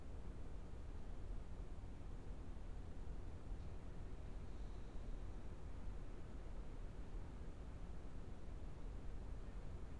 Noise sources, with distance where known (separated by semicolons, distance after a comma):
background noise